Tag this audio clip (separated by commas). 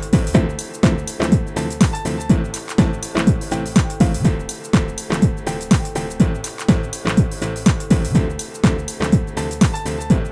Music